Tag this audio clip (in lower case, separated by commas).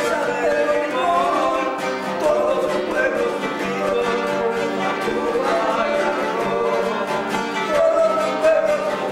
violin, bowed string instrument